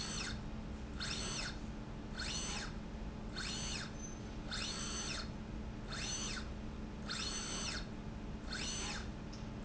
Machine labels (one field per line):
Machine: slide rail